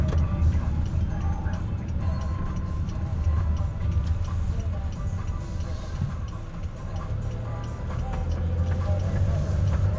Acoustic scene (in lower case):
car